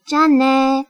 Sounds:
Human voice, Speech, Female speech

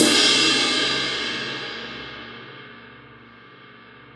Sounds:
Crash cymbal, Music, Cymbal, Musical instrument, Percussion

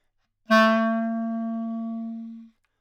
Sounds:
Music, Musical instrument, woodwind instrument

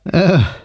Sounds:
Human voice

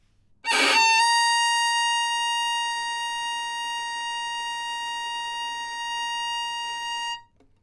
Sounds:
Music, Musical instrument, Bowed string instrument

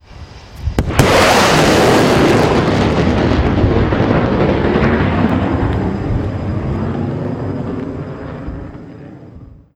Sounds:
Boom, Explosion

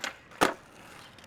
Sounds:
Skateboard, Vehicle

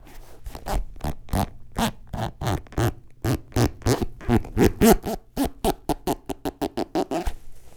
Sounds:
Squeak

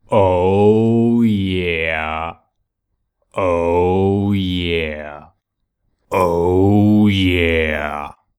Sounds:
Human voice, Male speech, Speech

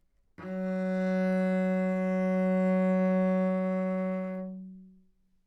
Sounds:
Music, Bowed string instrument, Musical instrument

